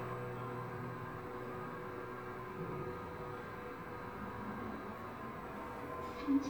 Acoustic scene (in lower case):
elevator